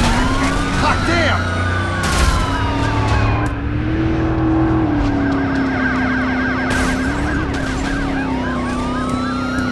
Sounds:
car, speech

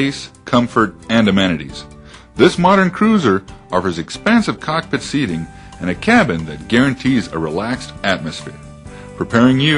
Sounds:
music, speech

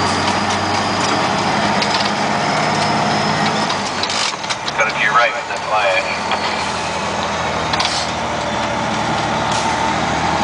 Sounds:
speech

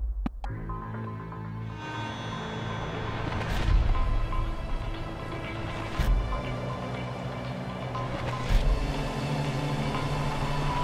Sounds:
music

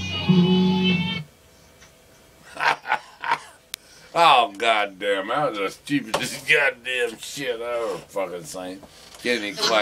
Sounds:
music, speech

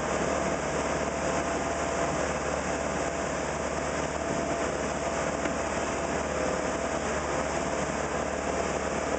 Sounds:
vehicle, speedboat acceleration, motorboat, boat

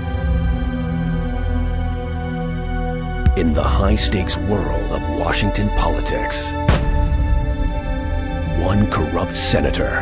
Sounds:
speech, music

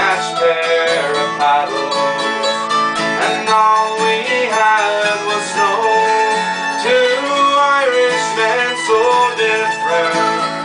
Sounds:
singing, bluegrass, music, mandolin

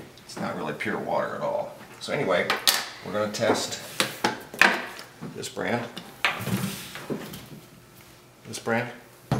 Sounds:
speech, inside a small room

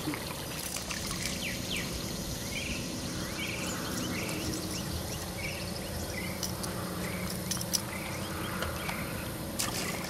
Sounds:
insect

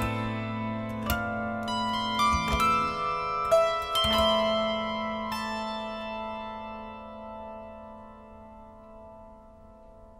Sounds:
zither, musical instrument, music

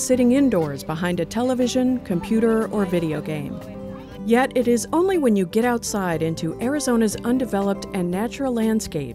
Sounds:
music, speech

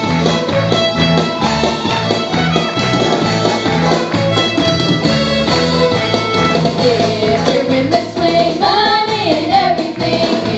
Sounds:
music, musical instrument, violin

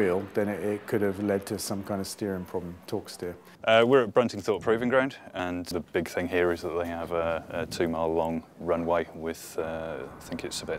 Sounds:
speech

